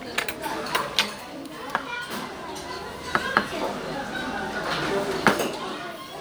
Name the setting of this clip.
restaurant